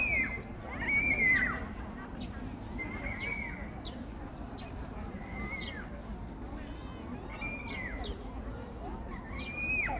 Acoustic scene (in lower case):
park